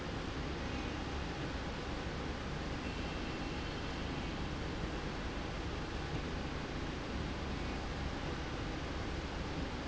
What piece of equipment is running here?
slide rail